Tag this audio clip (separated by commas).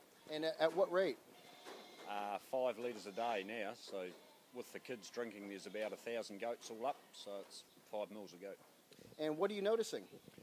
Speech, Sheep, Bleat